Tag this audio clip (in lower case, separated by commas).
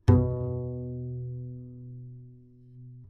bowed string instrument, musical instrument, music